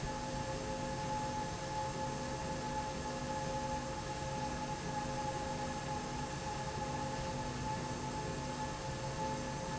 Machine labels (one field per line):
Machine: slide rail